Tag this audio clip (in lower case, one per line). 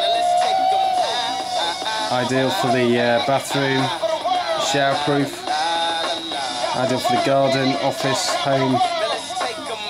radio
music
speech